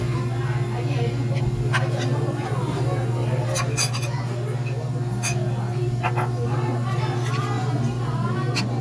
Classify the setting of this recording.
restaurant